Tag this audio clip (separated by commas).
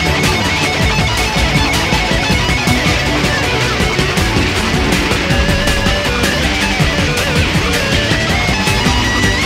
Music